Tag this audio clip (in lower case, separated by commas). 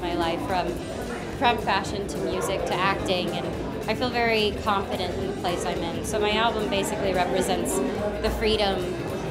music, speech